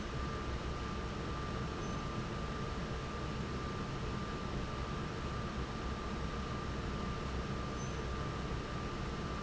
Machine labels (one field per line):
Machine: fan